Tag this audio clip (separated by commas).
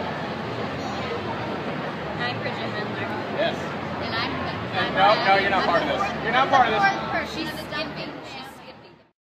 Speech